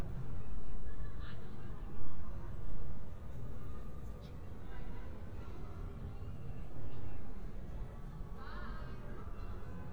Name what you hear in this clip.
car horn, person or small group talking, person or small group shouting